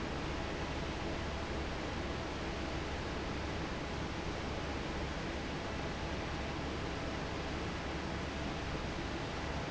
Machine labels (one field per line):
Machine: fan